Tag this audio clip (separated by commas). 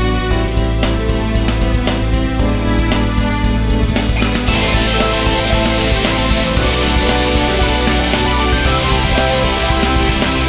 Music